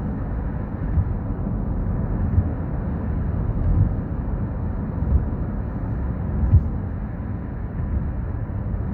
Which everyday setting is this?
car